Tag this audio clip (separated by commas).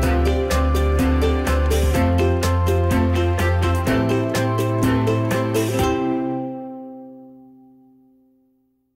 Music